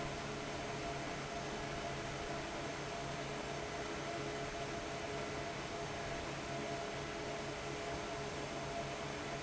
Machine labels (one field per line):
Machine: fan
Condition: abnormal